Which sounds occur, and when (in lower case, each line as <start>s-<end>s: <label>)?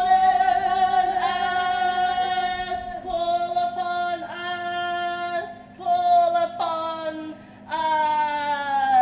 0.0s-7.3s: mechanisms
0.0s-9.0s: female singing
7.3s-7.6s: breathing
7.7s-9.0s: mechanisms